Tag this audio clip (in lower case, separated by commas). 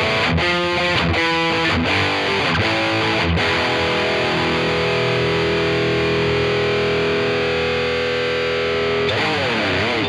electric guitar, strum, guitar, plucked string instrument, music, musical instrument